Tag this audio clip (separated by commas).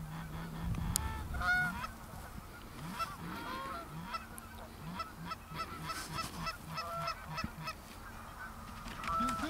Honk, Goose, Fowl